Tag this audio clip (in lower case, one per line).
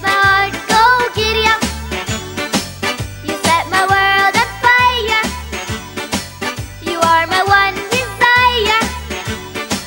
child singing